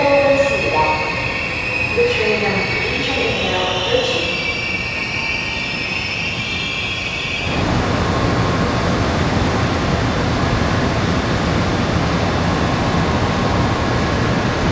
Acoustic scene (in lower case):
subway station